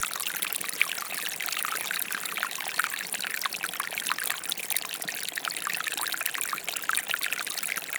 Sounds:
Stream, Water

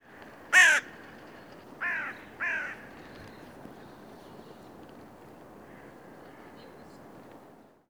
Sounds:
Bird, Wild animals, Animal

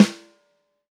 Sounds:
Percussion, Musical instrument, Snare drum, Drum, Music

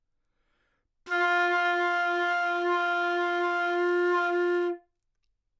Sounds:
woodwind instrument, Musical instrument, Music

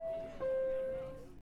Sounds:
home sounds, Subway, Door, Alarm, Vehicle, Rail transport, Doorbell

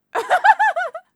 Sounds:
Laughter, Human voice

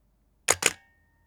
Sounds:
Mechanisms, Camera

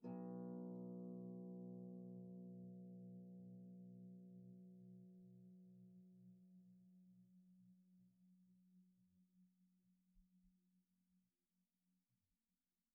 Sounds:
Harp, Musical instrument, Music

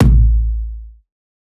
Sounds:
Percussion, Music, Drum, Musical instrument, Bass drum

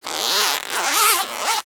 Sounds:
Zipper (clothing), Domestic sounds

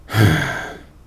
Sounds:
Human voice, Sigh

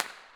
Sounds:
Fireworks, Explosion

